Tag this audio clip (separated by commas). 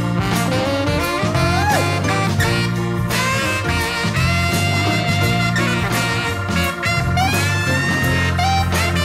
Music, Swing music